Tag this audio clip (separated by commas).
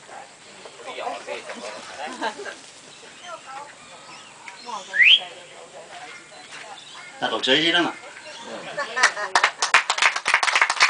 Speech, Animal, pets